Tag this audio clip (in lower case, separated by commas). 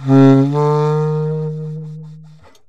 musical instrument, music, woodwind instrument